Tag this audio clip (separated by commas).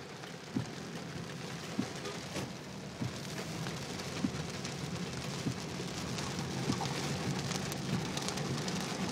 Rain on surface